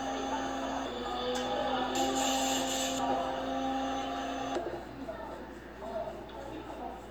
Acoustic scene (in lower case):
cafe